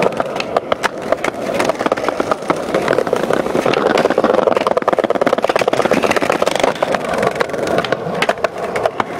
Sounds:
skateboarding

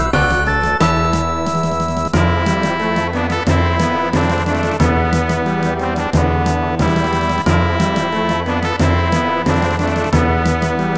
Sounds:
Blues, Music

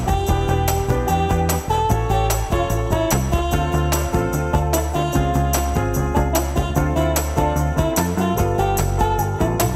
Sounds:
Electric guitar, Music, Guitar

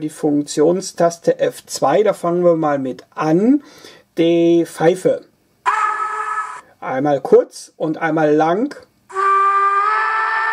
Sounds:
Speech

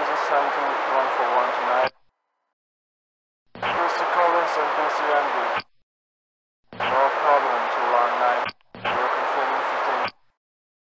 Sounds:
police radio chatter

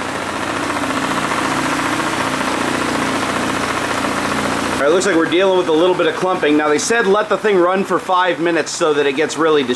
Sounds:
Engine

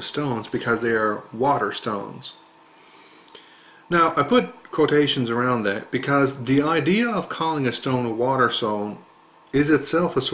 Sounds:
Speech

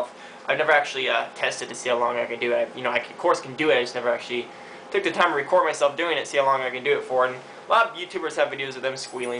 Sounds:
Speech

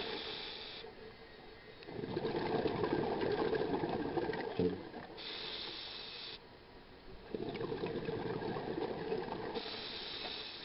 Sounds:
Boat

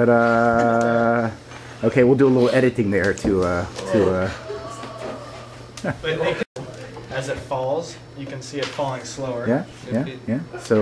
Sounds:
Speech

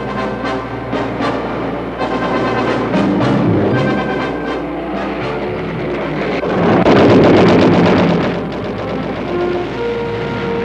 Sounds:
Music

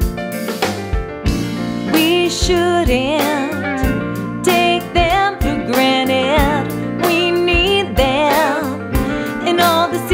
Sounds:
Country, Bluegrass, Music, Independent music

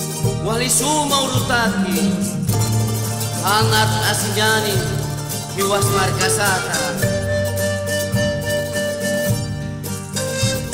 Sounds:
Folk music, Traditional music, Music

